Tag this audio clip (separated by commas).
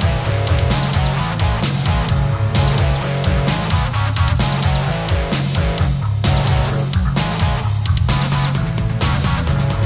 Music